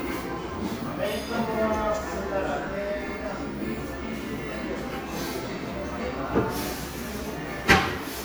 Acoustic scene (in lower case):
cafe